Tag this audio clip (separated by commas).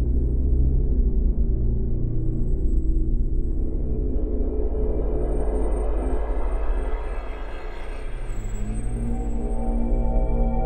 Background music, Music